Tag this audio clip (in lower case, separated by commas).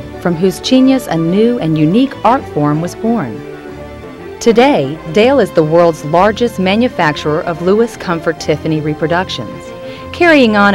music, speech